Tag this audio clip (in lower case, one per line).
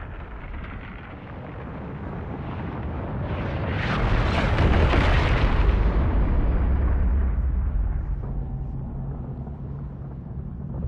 volcano explosion